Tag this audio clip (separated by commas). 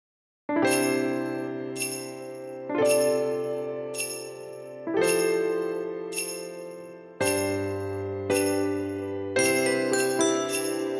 Music